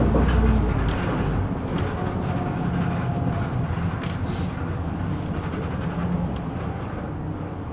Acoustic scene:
bus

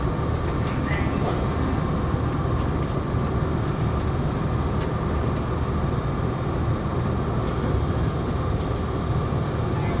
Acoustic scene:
subway station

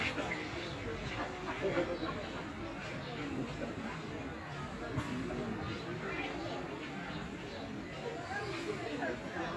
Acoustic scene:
park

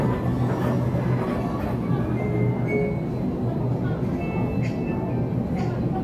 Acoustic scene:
crowded indoor space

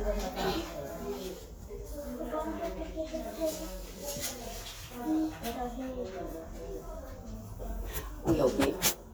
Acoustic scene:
crowded indoor space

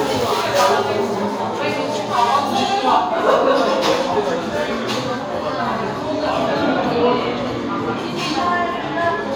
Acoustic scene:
cafe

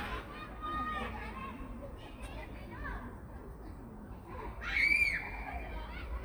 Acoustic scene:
park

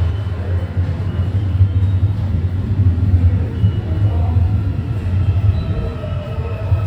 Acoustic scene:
subway station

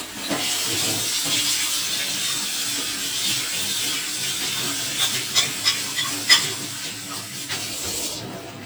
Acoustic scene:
kitchen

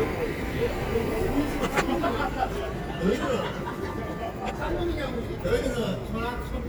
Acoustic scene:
residential area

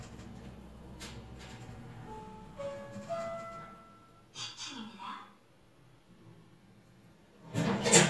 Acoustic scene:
elevator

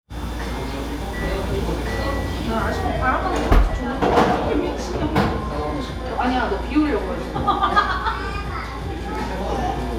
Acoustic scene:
cafe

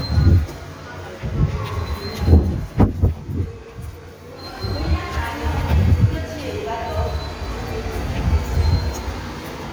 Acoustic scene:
subway station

